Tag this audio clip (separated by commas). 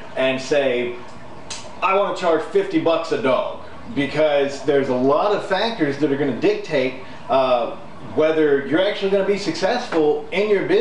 Speech